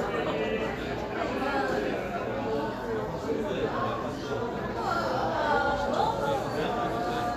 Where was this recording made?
in a crowded indoor space